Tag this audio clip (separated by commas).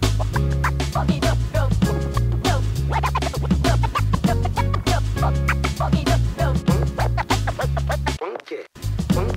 disc scratching